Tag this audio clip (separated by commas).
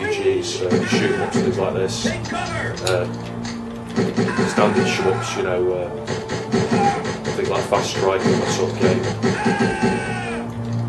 Speech, Music